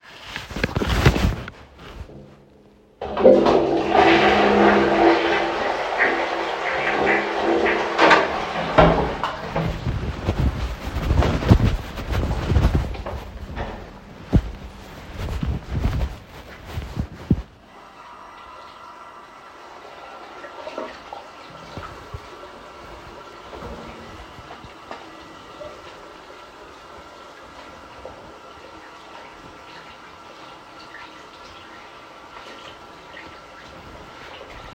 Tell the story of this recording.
The human operator flushed the toilet, opened the door, left the toilet room, and went to the bathroom to wash his hands. The phone was in the pocket